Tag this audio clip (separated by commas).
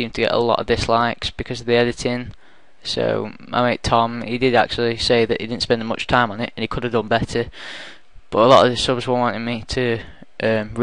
Speech